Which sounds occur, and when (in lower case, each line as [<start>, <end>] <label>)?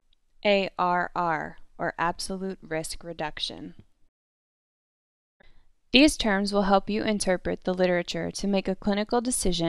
[0.01, 4.03] background noise
[0.35, 1.47] woman speaking
[1.72, 3.75] woman speaking
[5.36, 9.65] background noise
[5.87, 9.65] woman speaking